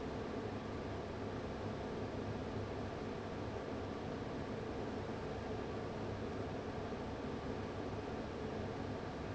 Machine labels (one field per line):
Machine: fan